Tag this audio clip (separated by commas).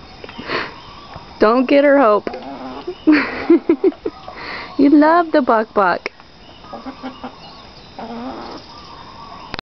Fowl, Cluck, Chicken